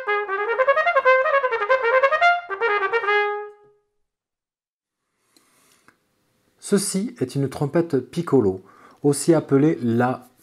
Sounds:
playing cornet

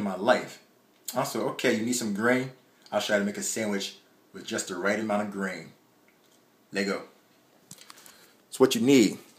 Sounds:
Speech

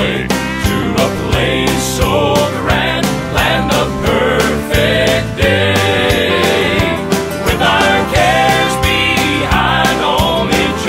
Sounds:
Trumpet, Music, Musical instrument

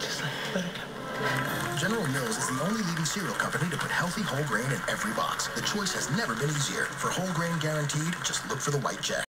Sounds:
Speech, Music

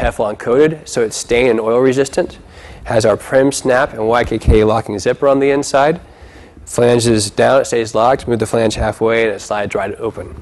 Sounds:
Speech

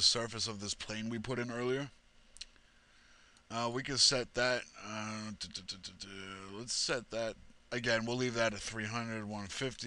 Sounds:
Speech

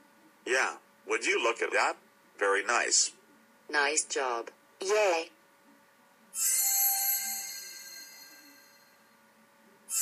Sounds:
Speech

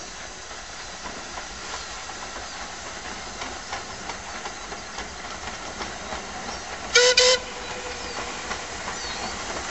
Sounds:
Train, Railroad car, Clickety-clack, Train whistle, Rail transport

